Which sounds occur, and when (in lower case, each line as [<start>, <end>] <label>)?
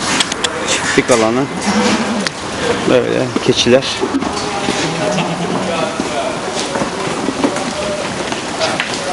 [0.00, 1.25] generic impact sounds
[0.00, 9.12] mechanisms
[0.77, 1.50] male speech
[1.44, 2.26] bleat
[2.21, 2.32] generic impact sounds
[2.82, 4.01] male speech
[4.20, 5.75] bleat
[5.57, 6.40] male speech
[6.49, 6.71] generic impact sounds
[8.55, 9.12] generic impact sounds